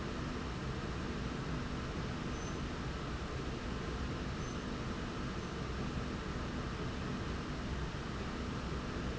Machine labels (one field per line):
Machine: slide rail